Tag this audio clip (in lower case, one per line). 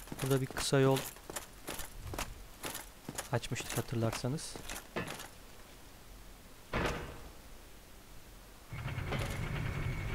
speech